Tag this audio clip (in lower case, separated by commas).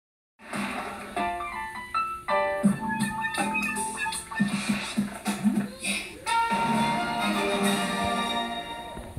television, music